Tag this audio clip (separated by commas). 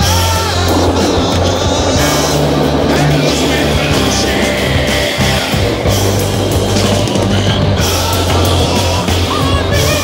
Music